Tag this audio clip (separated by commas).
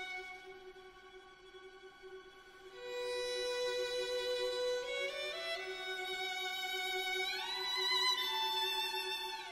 Musical instrument, Orchestra, Music, Violin